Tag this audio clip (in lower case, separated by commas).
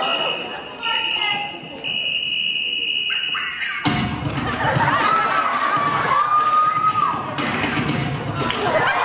speech, music